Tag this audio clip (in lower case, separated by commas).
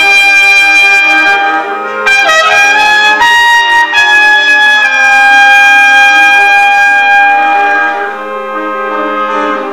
brass instrument, playing trumpet, trumpet